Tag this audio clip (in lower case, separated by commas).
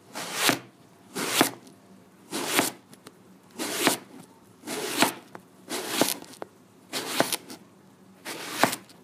home sounds